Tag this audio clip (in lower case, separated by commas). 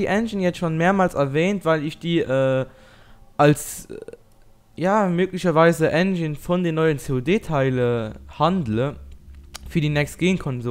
speech